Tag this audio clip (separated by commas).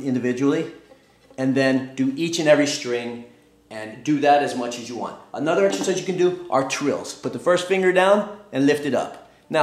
Speech